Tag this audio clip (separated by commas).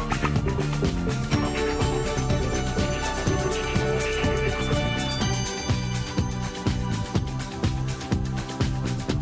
Theme music, Music